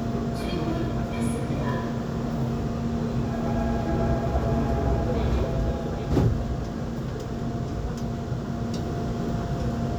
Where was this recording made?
on a subway train